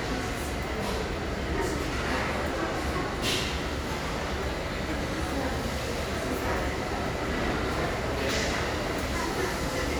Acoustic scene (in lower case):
restaurant